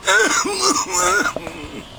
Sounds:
respiratory sounds, cough

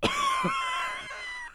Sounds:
cough, respiratory sounds

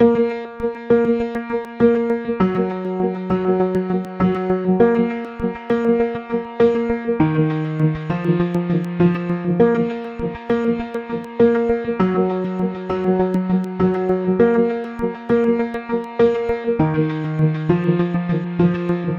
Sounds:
piano, musical instrument, keyboard (musical), music

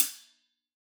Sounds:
music, cymbal, hi-hat, musical instrument, percussion

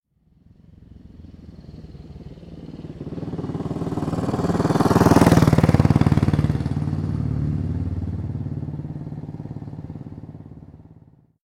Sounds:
vehicle, motorcycle, motor vehicle (road)

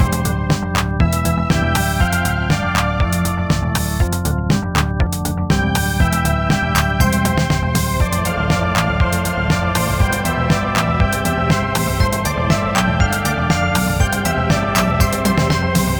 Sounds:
organ, musical instrument, music, keyboard (musical)

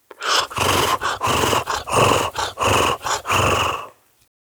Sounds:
breathing, respiratory sounds

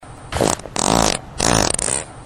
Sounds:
fart

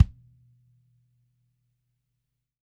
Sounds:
bass drum, music, drum, percussion, musical instrument

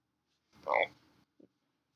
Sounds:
animal, wild animals, frog

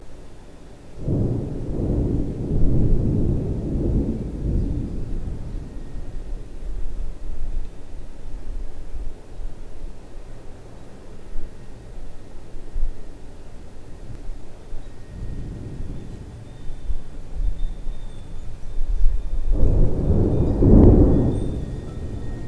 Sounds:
thunder, thunderstorm

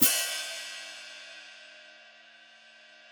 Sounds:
music, musical instrument, hi-hat, cymbal, percussion

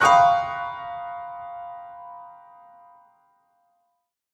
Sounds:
piano, music, keyboard (musical), musical instrument

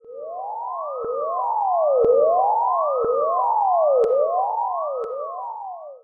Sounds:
vehicle, alarm, siren, motor vehicle (road)

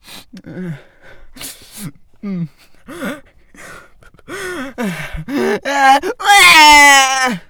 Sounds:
sobbing, human voice

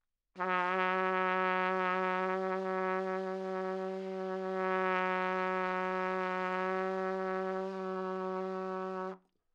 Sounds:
music, trumpet, musical instrument, brass instrument

